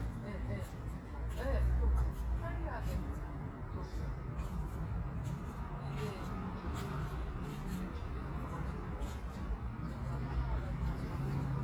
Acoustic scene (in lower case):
residential area